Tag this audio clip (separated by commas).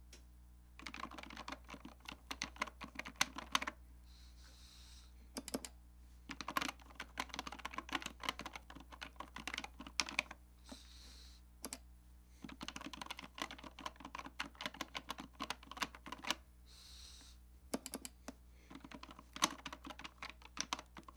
Typing, Computer keyboard, home sounds